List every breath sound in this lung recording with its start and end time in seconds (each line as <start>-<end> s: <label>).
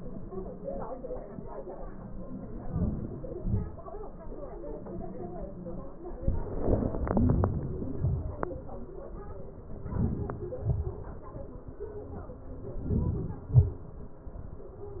2.61-3.18 s: inhalation
3.32-3.78 s: exhalation
9.97-10.47 s: inhalation
10.68-11.05 s: exhalation
12.90-13.42 s: inhalation
13.54-13.93 s: exhalation